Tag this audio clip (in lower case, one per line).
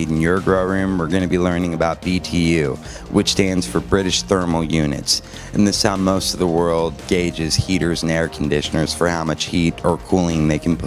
music
speech